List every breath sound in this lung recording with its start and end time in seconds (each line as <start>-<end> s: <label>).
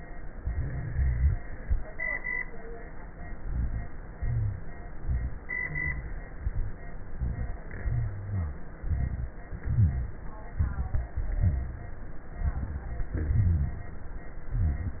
0.38-1.38 s: rhonchi
3.38-3.86 s: inhalation
3.38-3.86 s: rhonchi
4.19-4.68 s: exhalation
4.19-4.68 s: rhonchi
4.99-5.42 s: inhalation
4.99-5.42 s: rhonchi
5.58-6.21 s: exhalation
5.58-6.21 s: rhonchi
6.43-6.88 s: inhalation
6.43-6.88 s: rhonchi
7.15-7.66 s: exhalation
7.15-7.66 s: rhonchi
7.86-8.64 s: rhonchi
8.82-9.35 s: inhalation
8.82-9.35 s: rhonchi
9.62-10.14 s: exhalation
9.62-10.14 s: rhonchi
10.59-11.11 s: inhalation
10.59-11.11 s: rhonchi
11.14-11.83 s: exhalation
11.14-11.83 s: rhonchi
12.41-13.01 s: inhalation
12.41-13.01 s: rhonchi
13.13-13.82 s: exhalation
13.13-13.82 s: rhonchi
14.59-15.00 s: inhalation
14.59-15.00 s: rhonchi